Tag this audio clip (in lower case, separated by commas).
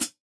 music, musical instrument, percussion, hi-hat, cymbal